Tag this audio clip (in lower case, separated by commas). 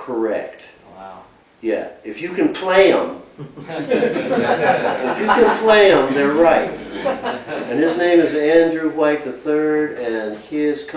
speech